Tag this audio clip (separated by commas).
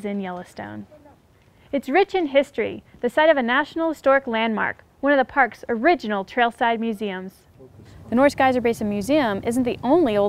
Speech